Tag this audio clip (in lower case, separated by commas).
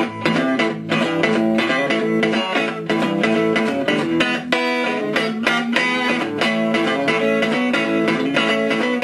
music